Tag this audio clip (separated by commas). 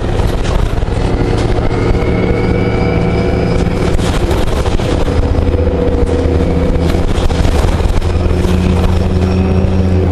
Vehicle, Bus